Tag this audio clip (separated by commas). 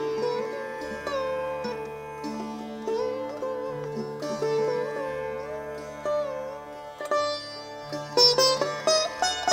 Music, Sitar